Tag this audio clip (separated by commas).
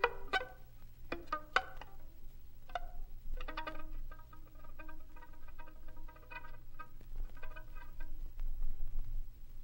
Pizzicato, Violin